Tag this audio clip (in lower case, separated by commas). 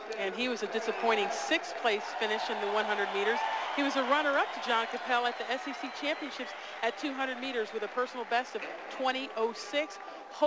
speech, outside, urban or man-made